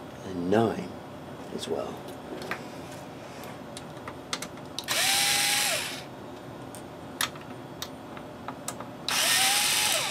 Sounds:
tools, power tool

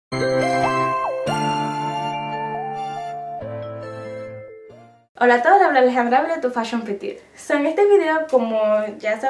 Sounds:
speech, music, inside a small room

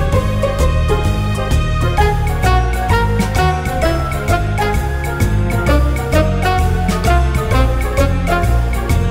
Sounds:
music

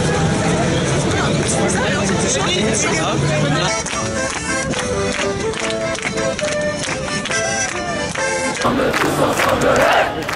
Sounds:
music, speech

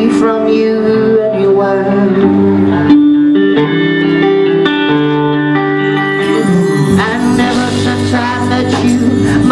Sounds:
music

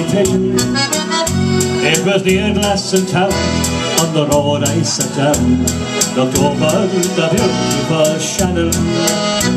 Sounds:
singing, musical instrument, music

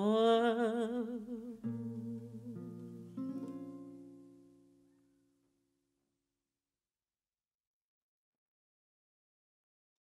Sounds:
guitar, plucked string instrument, musical instrument, singing

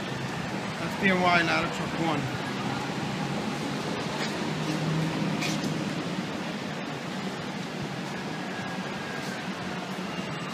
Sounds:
speech

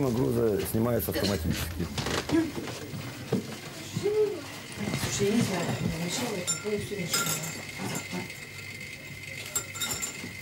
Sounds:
inside a small room, speech

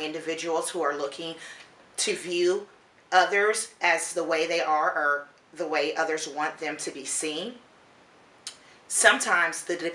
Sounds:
speech

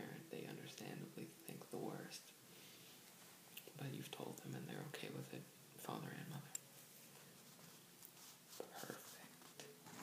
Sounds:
inside a small room, speech

